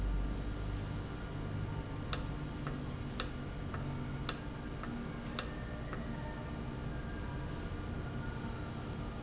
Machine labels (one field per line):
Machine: valve